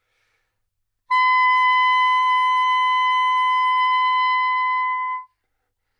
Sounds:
musical instrument
wind instrument
music

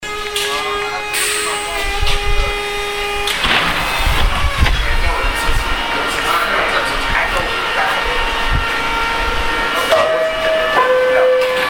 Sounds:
metro
vehicle
rail transport

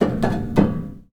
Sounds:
tap

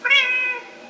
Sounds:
animal
pets
cat

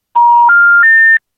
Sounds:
alarm
telephone

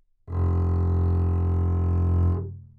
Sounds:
bowed string instrument
music
musical instrument

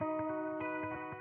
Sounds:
musical instrument
music
plucked string instrument
guitar
electric guitar

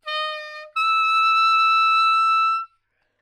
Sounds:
woodwind instrument
music
musical instrument

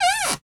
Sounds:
cupboard open or close
domestic sounds
door

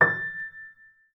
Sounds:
piano
music
keyboard (musical)
musical instrument

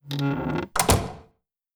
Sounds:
home sounds
slam
squeak
wood
door

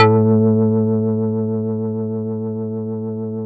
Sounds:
musical instrument
music
keyboard (musical)
organ

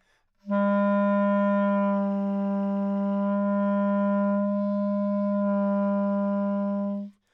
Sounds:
music
musical instrument
wind instrument

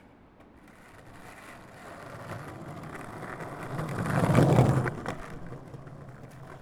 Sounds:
vehicle
skateboard

